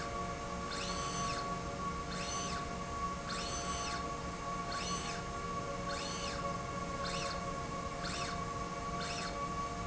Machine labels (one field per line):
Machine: slide rail